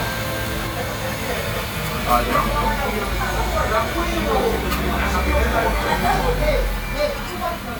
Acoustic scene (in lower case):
crowded indoor space